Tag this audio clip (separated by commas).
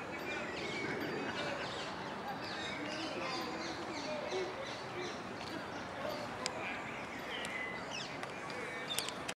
Speech, Coo, Animal, Bird